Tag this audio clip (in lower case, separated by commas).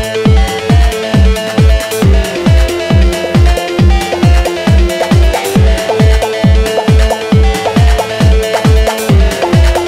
music